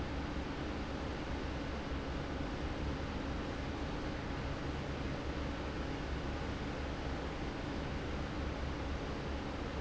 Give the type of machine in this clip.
fan